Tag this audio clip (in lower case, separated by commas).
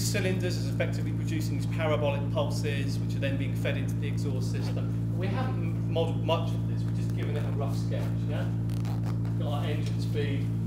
speech